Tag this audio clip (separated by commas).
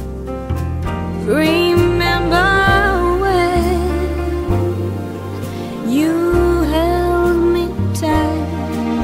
Music